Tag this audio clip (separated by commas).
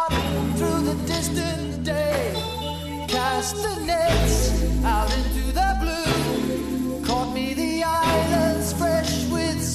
Music